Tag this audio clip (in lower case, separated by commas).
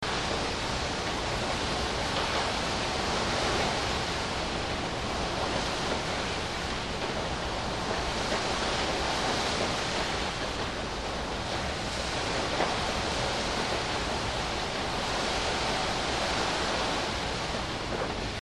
ocean, vehicle, water vehicle, water